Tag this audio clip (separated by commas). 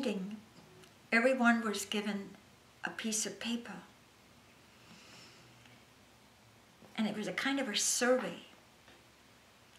Speech